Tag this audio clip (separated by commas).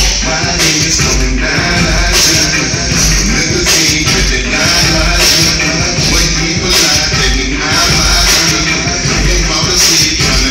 Music, Dubstep